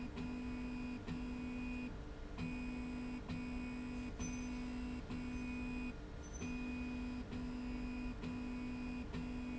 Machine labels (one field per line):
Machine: slide rail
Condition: normal